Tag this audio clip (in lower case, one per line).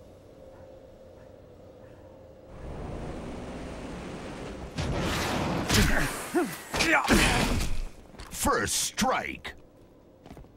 speech